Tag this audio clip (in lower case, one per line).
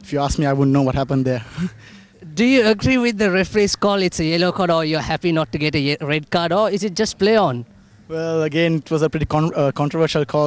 speech